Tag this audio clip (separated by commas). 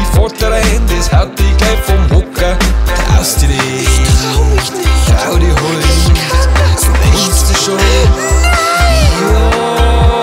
Music